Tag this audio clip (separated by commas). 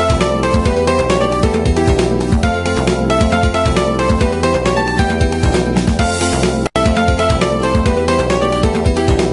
Music